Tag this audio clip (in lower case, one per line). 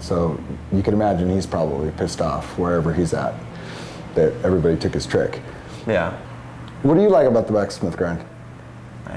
speech